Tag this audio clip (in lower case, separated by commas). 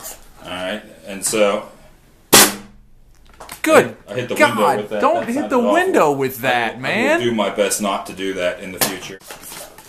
cap gun, speech